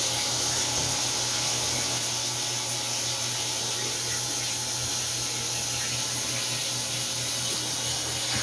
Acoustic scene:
restroom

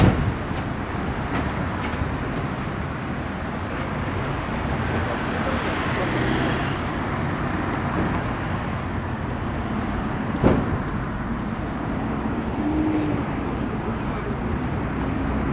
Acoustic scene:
street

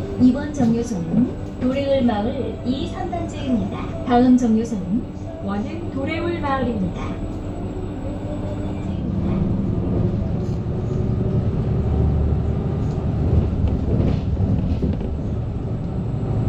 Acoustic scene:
bus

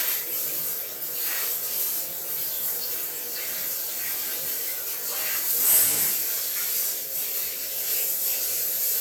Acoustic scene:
restroom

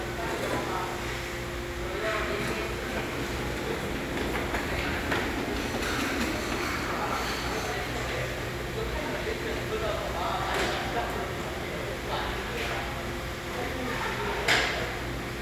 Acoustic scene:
restaurant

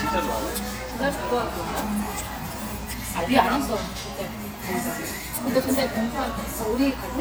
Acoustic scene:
restaurant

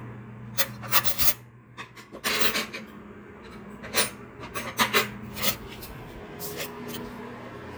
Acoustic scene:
kitchen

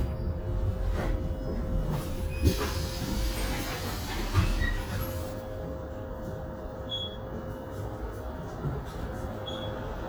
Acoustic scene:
bus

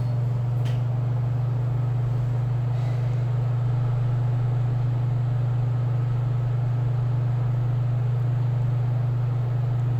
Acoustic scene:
elevator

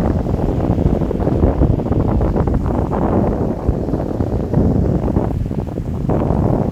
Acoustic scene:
park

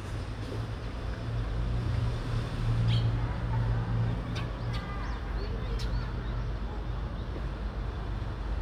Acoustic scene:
residential area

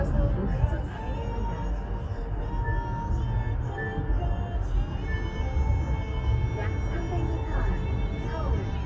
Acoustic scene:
car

